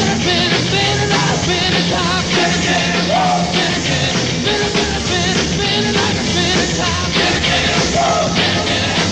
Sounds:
inside a large room or hall
singing
yell
music

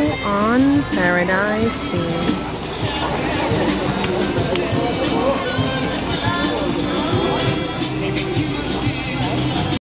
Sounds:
music
vehicle
speech

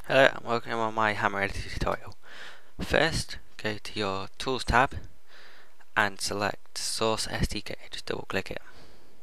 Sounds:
speech

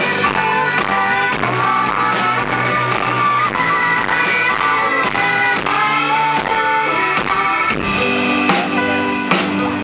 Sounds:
music
female singing

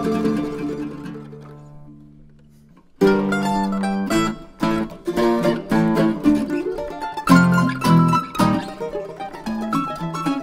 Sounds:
orchestra
music
classical music
musical instrument
zither

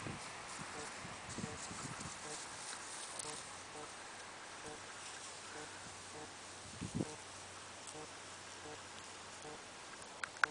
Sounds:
clip-clop

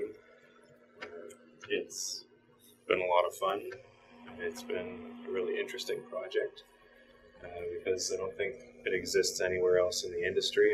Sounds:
speech

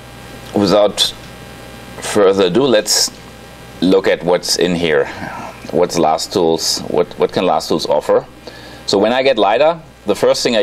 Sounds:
speech

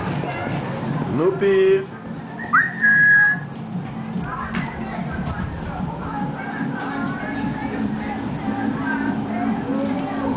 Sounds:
music
speech

